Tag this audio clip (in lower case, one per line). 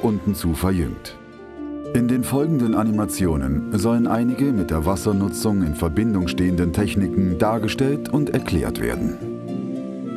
speech
music